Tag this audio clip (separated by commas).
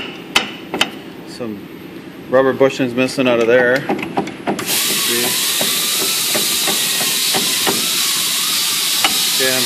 inside a large room or hall, Speech